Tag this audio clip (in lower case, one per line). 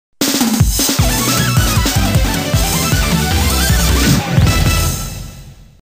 music